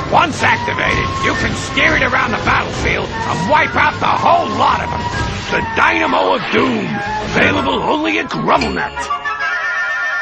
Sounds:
music
speech

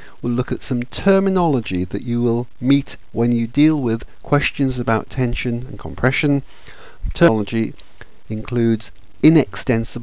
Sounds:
monologue

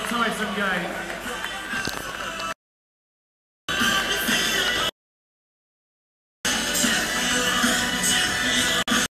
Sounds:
music
outside, urban or man-made
speech

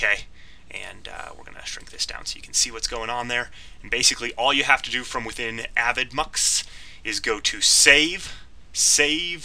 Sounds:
speech

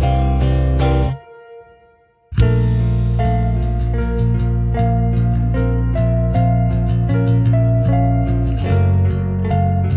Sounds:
music

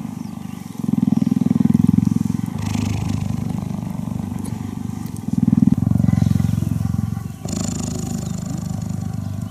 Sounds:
cat purring

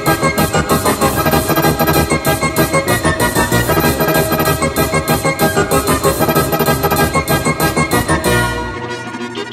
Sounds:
music

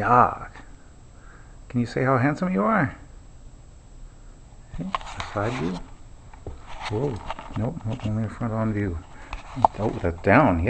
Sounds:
speech

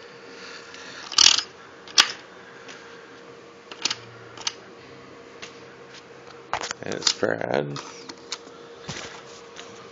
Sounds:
speech

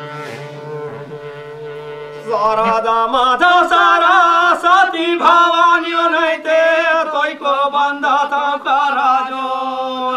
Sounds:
music
male singing

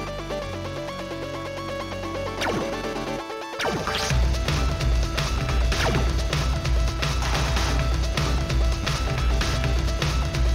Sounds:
music

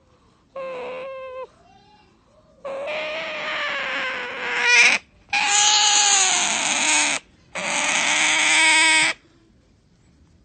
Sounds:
otter growling

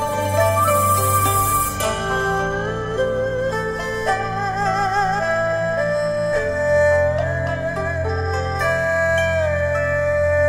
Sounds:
music

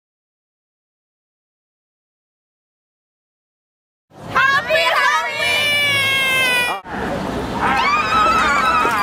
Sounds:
run
speech

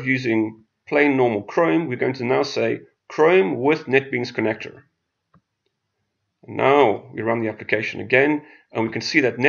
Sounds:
inside a small room
speech

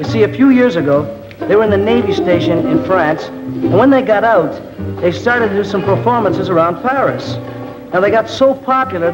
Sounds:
speech
music

